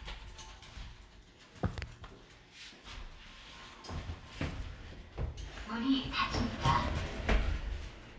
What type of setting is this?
elevator